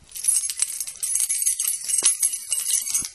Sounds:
home sounds, Keys jangling

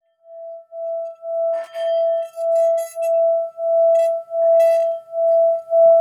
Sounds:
Musical instrument, Music

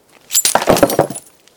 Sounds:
Glass, Shatter

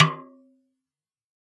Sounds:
Music, Drum, Musical instrument, Percussion, Snare drum

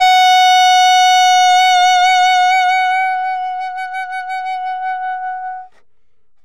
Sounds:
Music, Musical instrument, woodwind instrument

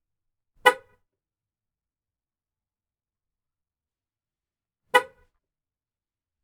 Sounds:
Vehicle, Car, Motor vehicle (road)

